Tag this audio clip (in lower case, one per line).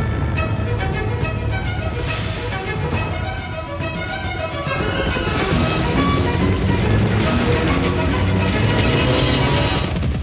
music